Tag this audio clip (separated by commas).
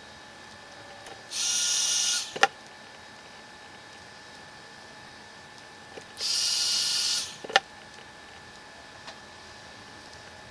Power tool, Tools